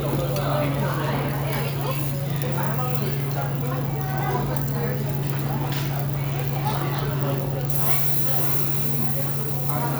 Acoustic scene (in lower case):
restaurant